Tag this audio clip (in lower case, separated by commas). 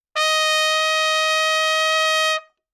music, trumpet, brass instrument, musical instrument